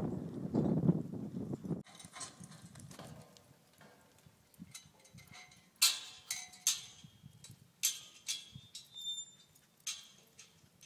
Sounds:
Animal, Clip-clop, Horse

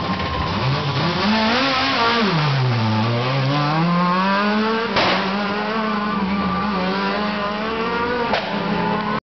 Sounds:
Rustle

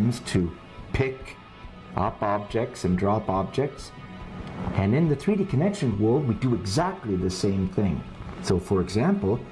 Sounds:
Speech, Music

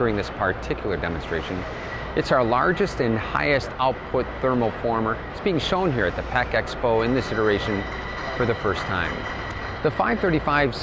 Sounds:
Speech

